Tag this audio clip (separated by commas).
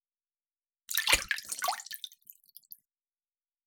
Water